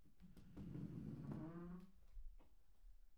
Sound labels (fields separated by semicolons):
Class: furniture moving; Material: wooden